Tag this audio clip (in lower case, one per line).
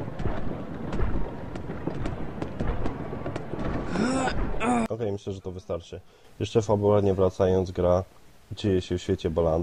speech